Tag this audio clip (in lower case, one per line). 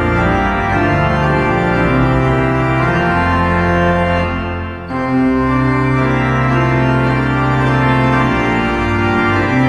playing electronic organ